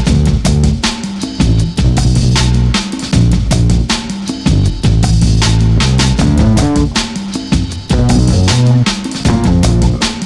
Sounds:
music, outside, rural or natural

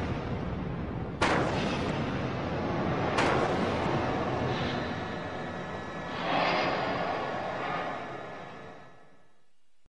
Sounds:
explosion, burst

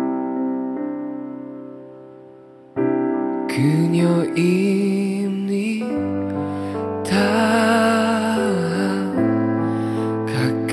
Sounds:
music

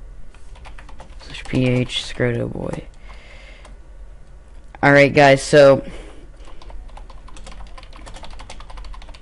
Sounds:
computer keyboard, typing, speech

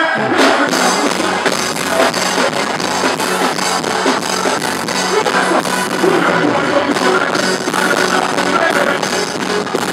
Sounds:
music

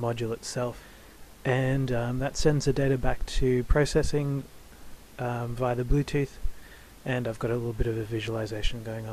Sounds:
speech

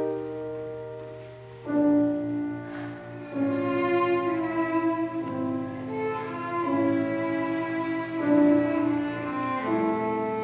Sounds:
violin, music, bowed string instrument, playing cello, cello, musical instrument

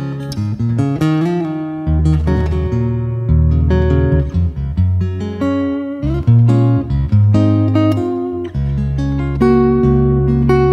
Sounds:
plucked string instrument, musical instrument, music, strum, acoustic guitar, guitar

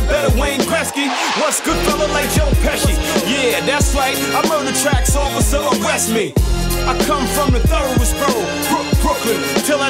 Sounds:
soundtrack music, music

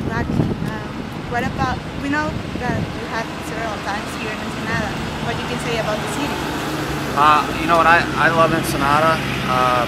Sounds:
vehicle, speech, outside, urban or man-made

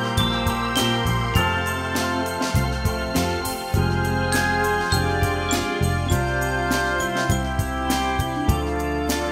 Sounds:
ding

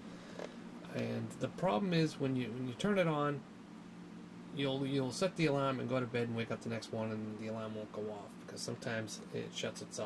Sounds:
speech

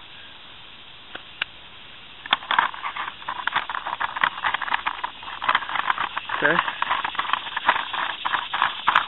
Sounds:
speech, outside, rural or natural

